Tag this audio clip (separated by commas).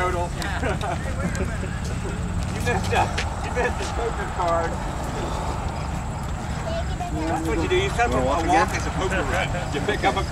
Walk, Speech